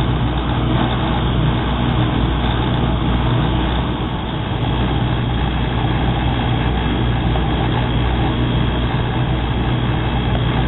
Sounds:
Vehicle

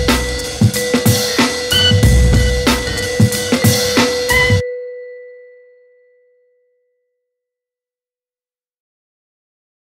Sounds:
Music, Glockenspiel

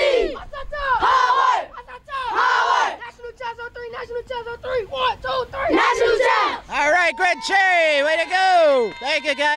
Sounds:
Speech

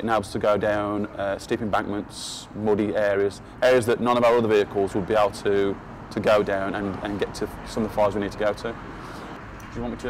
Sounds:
Speech

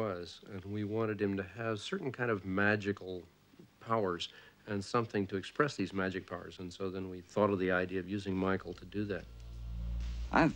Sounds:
Speech

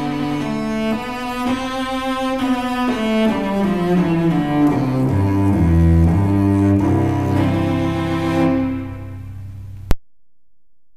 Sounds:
Cello, playing cello, Music

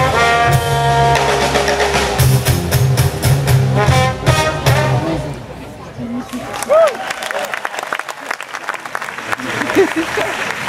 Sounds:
Music, Speech

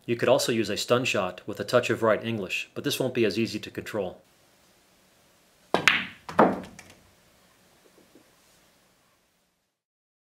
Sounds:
striking pool

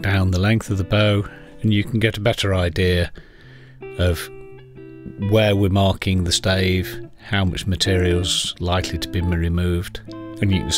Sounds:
Speech, Music

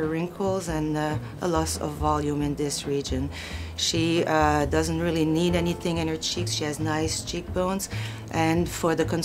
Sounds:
Speech, Music

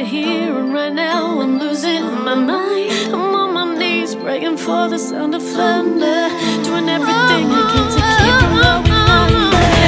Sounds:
Music

